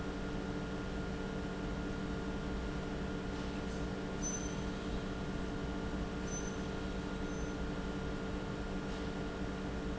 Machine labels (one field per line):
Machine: pump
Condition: normal